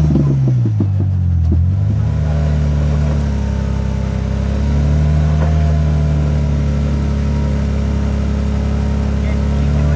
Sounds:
vroom, Vehicle, engine accelerating, Car

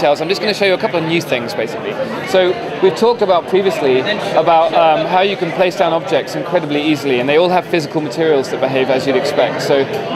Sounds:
Speech

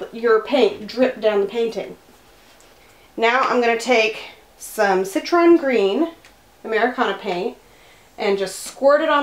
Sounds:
Speech

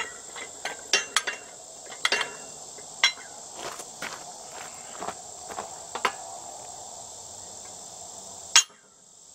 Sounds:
footsteps

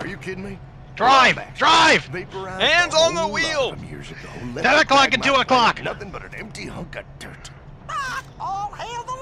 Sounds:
Speech

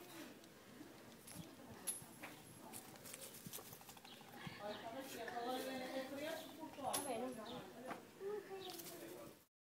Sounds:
Speech

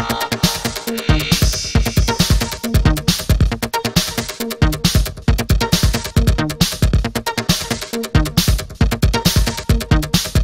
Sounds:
Music, Electronica

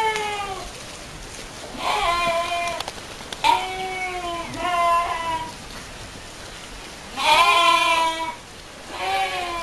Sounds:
sheep bleating, Sheep, Bleat

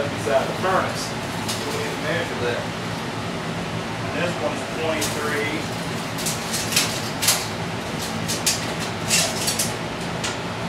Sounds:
inside a small room, Speech

